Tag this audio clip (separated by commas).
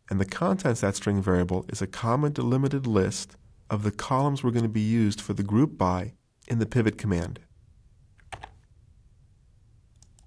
Speech